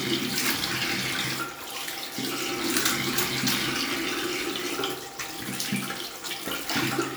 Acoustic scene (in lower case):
restroom